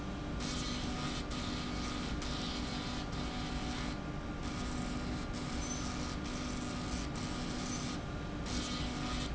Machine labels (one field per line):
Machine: slide rail